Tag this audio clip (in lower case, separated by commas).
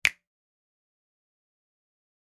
finger snapping, hands